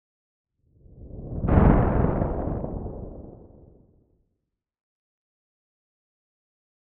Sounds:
thunder, thunderstorm

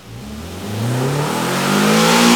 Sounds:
engine, motor vehicle (road), vehicle, revving, car

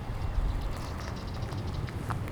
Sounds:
bird vocalization, animal, bird, wild animals

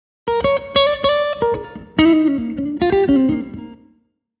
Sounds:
guitar, music, plucked string instrument, musical instrument

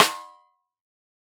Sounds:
drum, music, percussion, snare drum, musical instrument

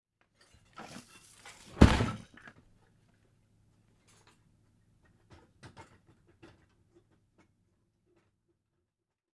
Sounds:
thud

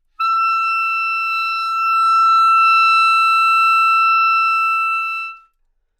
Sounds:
wind instrument, musical instrument, music

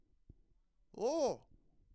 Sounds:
human voice, speech, male speech

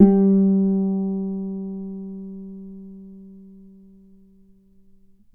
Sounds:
musical instrument, guitar, plucked string instrument, music

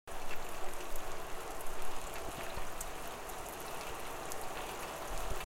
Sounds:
water, rain

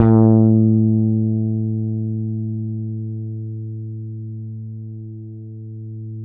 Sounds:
guitar, plucked string instrument, musical instrument, bass guitar, music

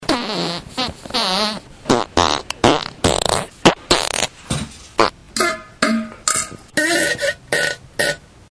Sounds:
fart

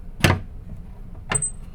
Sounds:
squeak

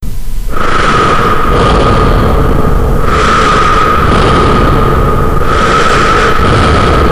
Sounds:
breathing, respiratory sounds

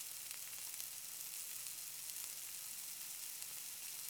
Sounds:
domestic sounds, frying (food)

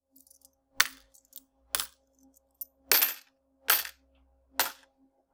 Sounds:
home sounds, coin (dropping)

